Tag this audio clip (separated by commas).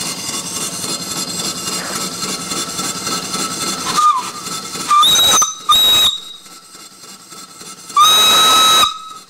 Steam whistle, Steam, Hiss